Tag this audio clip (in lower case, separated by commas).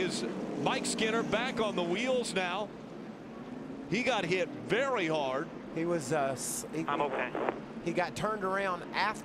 car, speech